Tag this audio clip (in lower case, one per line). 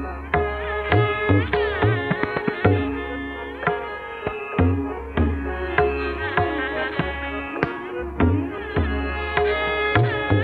sitar
music